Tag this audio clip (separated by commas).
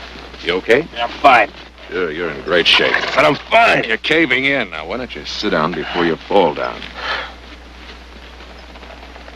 Speech